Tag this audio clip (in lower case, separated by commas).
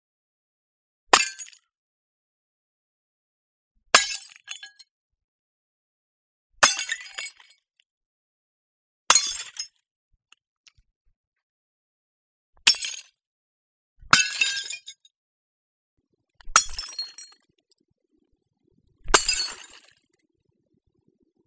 shatter, glass